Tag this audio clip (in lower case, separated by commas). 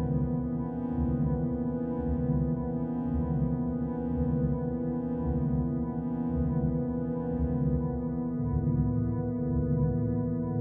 music